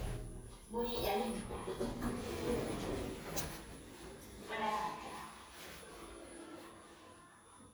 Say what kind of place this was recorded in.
elevator